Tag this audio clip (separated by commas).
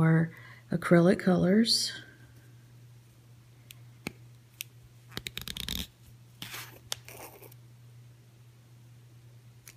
inside a small room, Speech